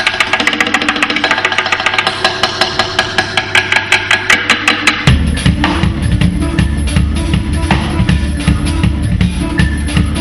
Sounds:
Music

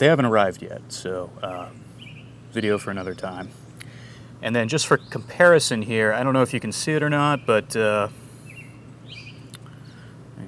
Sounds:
outside, rural or natural, Speech

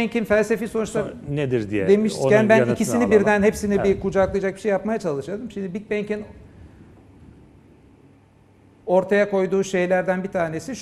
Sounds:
Speech

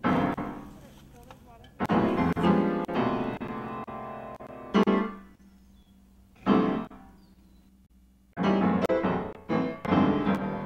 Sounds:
Sound effect, Music, Speech

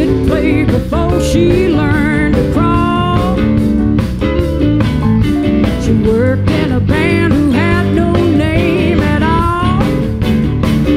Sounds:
Music, Blues

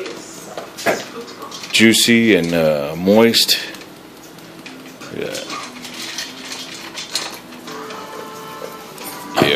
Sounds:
Music, Speech

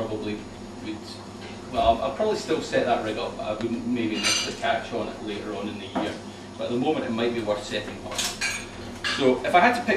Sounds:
Speech, inside a large room or hall

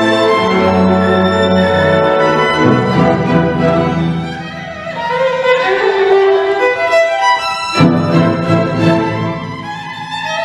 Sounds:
Musical instrument, fiddle, Music

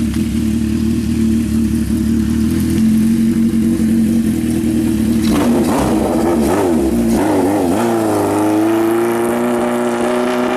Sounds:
Vehicle

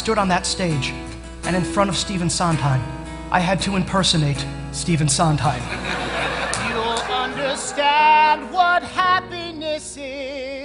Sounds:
Speech, Music

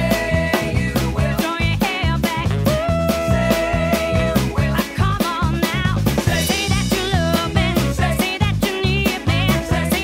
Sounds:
Music

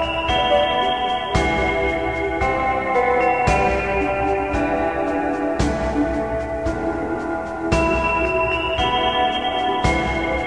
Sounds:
Ambient music

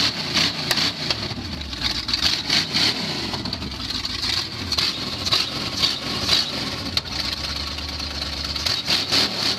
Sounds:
Vehicle, revving

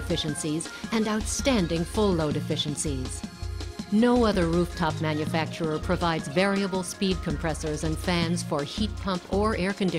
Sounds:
Music, Speech

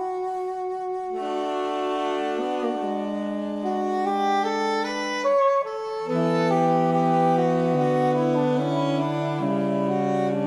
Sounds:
Music, Clarinet, Musical instrument, Saxophone

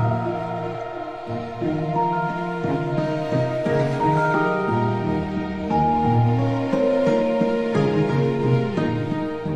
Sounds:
Lullaby, Music, Sad music, Background music

